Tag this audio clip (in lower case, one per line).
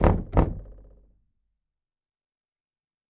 knock
door
home sounds